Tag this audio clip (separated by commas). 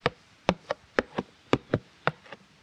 Walk